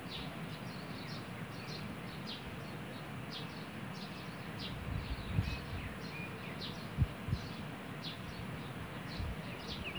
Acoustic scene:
park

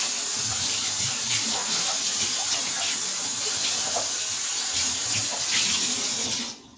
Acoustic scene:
kitchen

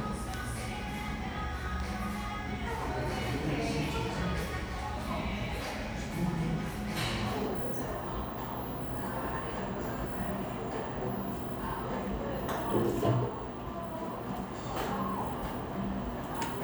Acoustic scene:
cafe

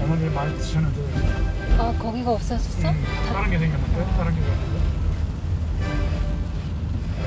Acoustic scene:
car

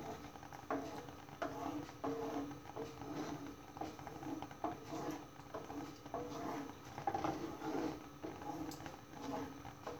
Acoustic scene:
kitchen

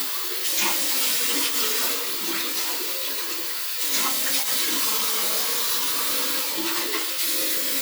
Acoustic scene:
restroom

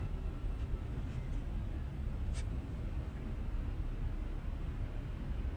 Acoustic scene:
car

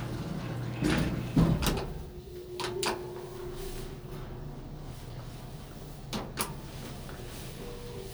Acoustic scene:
elevator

